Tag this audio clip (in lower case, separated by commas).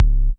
drum, bass drum, music, percussion, musical instrument